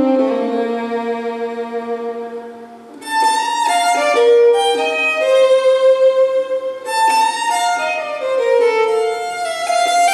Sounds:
Musical instrument, fiddle, Music

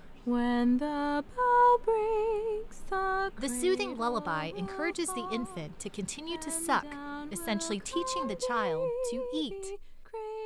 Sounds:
Speech, Lullaby

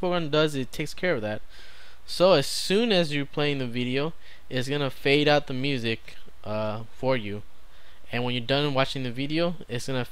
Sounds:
Speech

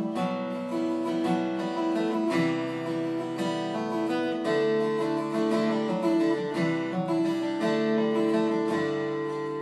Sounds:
Plucked string instrument, Guitar, Musical instrument, Music

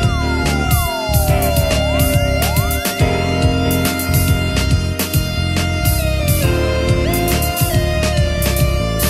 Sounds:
Music

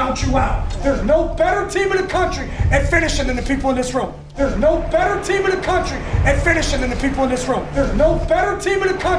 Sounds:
Speech, Music

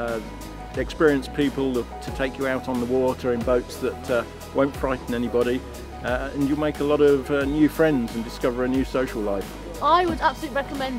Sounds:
Speech, Music

